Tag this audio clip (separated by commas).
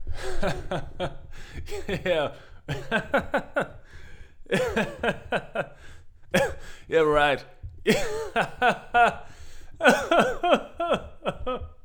Laughter, Human voice